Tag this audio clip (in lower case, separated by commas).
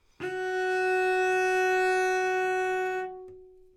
musical instrument, bowed string instrument, music